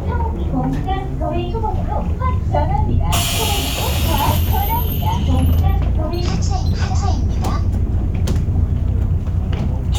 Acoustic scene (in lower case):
bus